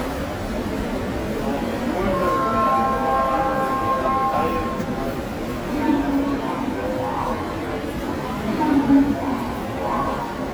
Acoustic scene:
subway station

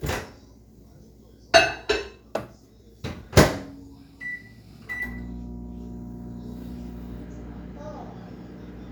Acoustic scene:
kitchen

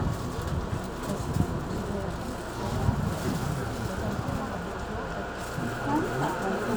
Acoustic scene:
subway train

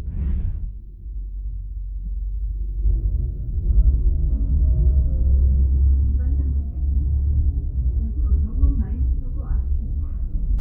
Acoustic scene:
bus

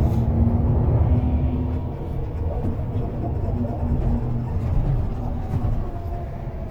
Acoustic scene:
bus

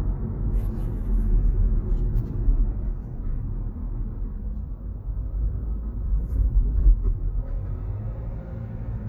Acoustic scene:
car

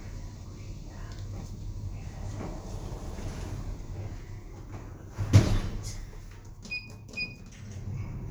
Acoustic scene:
elevator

